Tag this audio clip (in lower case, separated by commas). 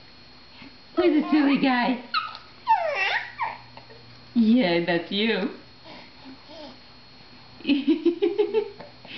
speech, inside a small room